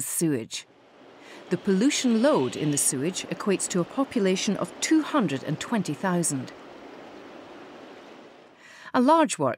A woman speaking with water rushing in the background